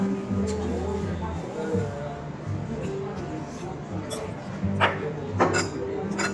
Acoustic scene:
restaurant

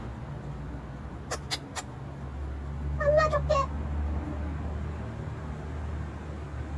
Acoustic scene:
residential area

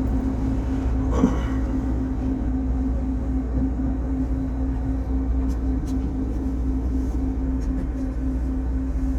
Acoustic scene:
bus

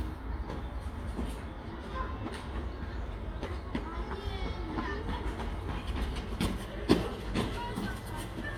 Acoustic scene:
residential area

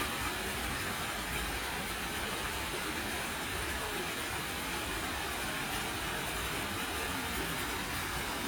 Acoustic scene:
park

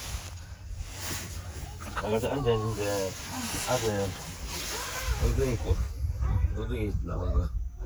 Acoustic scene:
park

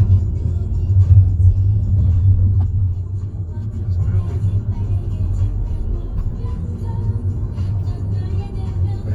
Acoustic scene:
car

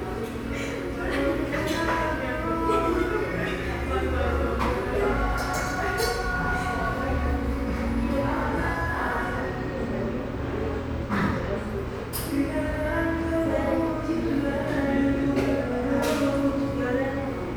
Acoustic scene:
cafe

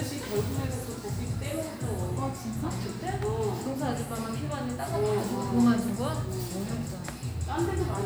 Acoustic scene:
cafe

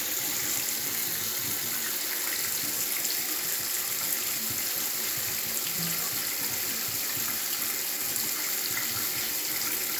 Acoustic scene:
restroom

